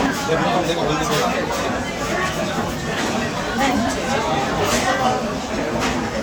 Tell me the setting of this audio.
crowded indoor space